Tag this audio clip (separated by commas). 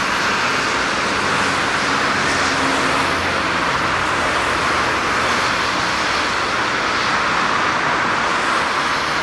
Rail transport, Vehicle, Train